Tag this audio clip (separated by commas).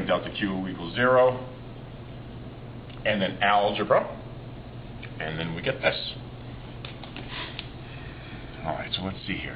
Speech